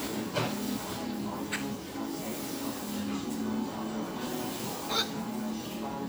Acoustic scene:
cafe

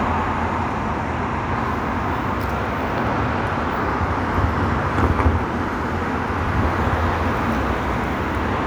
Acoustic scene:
street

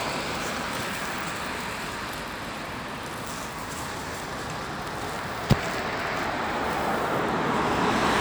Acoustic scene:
street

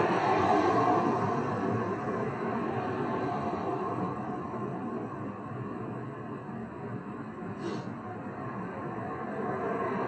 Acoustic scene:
street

